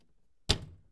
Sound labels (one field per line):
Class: cupboard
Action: closing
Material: glass